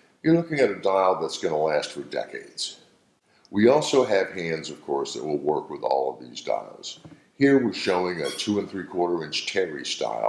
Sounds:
Speech

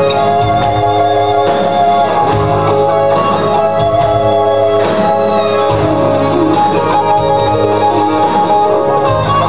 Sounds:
Music, Musical instrument, Bass guitar, Guitar, Plucked string instrument

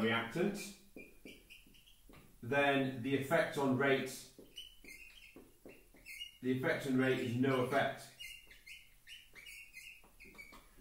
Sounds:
inside a small room, Speech

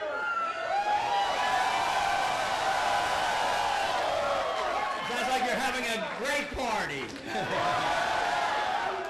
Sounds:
Male speech, Speech

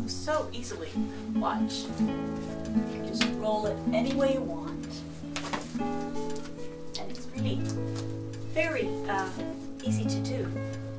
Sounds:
Flamenco

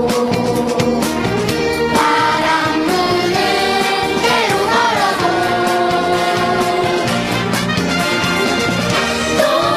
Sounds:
Choir, Music, Child singing, Happy music

